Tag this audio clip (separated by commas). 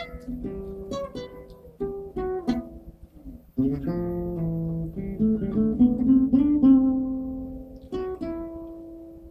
Plucked string instrument, Guitar, Music, Acoustic guitar, Musical instrument